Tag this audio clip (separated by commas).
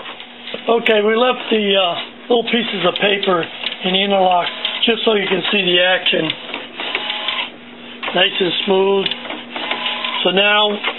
Printer, Speech